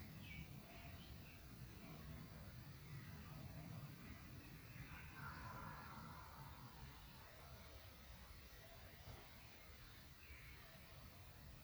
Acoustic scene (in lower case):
park